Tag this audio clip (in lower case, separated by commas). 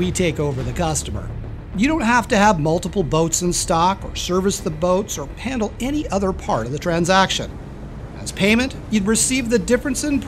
speech